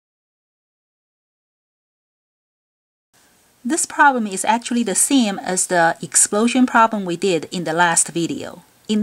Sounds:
Speech

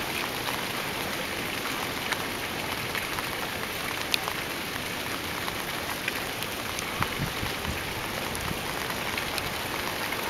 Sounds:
Rain, Rain on surface

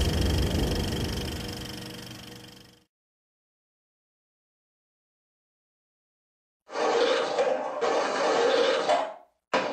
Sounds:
Music

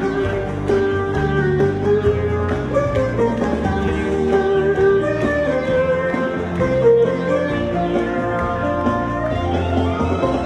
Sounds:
Music

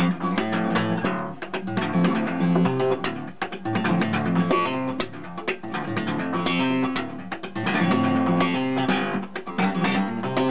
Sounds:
Music

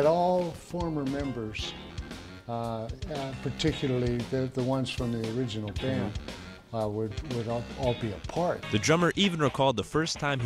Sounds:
Rock and roll, Speech, Music, Rock music

